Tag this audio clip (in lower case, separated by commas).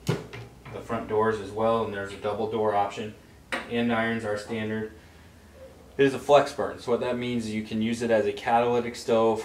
speech